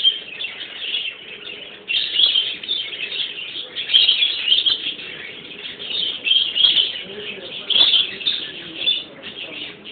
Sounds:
Animal, outside, rural or natural, Speech

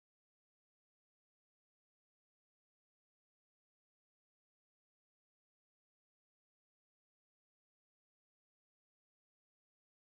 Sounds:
strike lighter

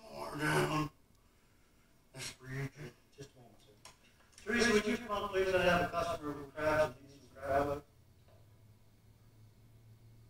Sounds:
Speech, inside a public space

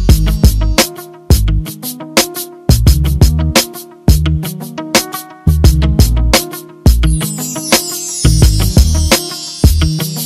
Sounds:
Pop music, Background music, Music

